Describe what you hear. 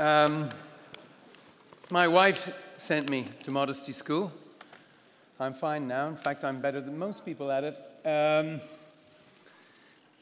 A man delivers a speech